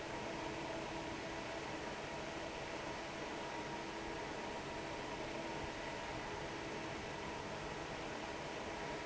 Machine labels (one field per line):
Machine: fan